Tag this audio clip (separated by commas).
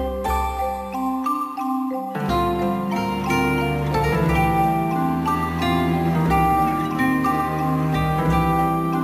xylophone, Mallet percussion, Glockenspiel